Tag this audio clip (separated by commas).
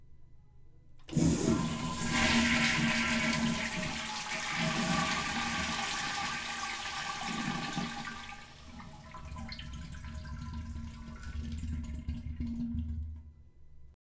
Toilet flush, Domestic sounds